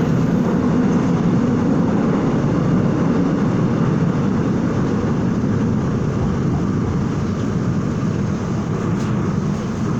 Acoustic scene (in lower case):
subway train